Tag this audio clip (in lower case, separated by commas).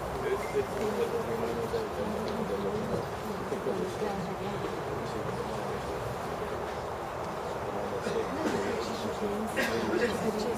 inside a large room or hall, speech